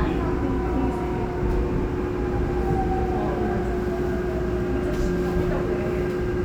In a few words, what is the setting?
subway train